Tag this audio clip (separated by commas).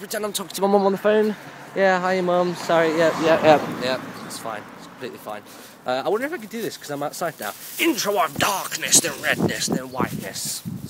Speech, outside, urban or man-made